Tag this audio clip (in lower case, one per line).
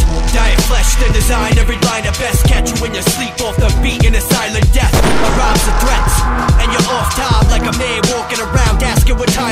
rhythm and blues
music